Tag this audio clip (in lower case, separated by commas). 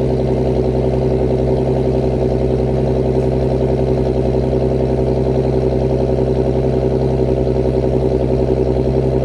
car, vehicle